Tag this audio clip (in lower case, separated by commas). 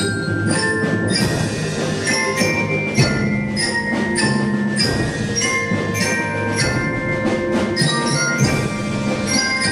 mallet percussion, glockenspiel, drum, drum kit, marimba, snare drum, percussion, bass drum